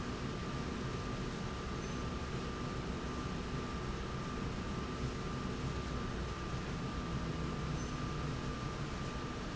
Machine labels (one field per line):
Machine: slide rail